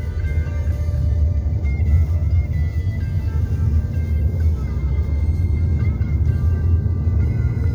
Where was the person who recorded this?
in a car